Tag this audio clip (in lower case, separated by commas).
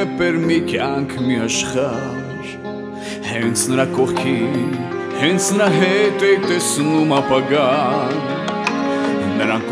music